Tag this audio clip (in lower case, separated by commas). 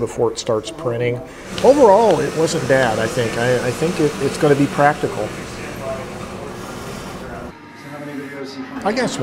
typing on typewriter